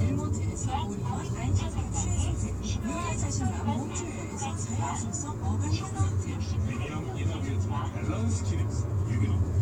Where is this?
in a car